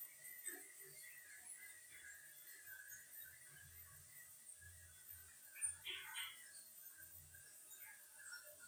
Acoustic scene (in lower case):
restroom